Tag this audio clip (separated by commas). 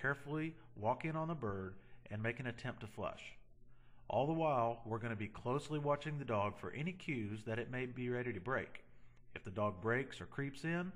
Speech, Narration